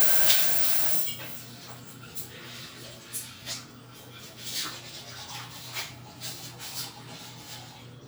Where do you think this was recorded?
in a restroom